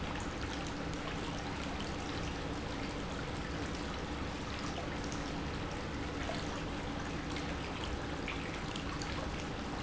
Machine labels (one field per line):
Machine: pump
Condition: normal